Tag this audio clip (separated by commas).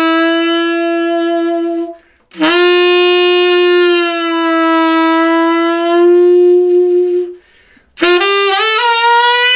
Music